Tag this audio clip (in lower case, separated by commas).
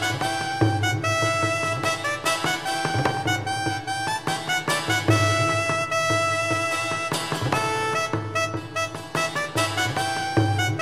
music